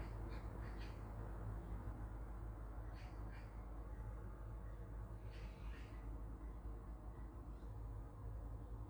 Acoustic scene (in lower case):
park